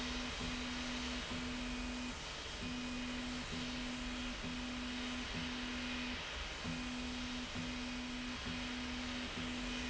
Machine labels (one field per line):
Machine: slide rail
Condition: normal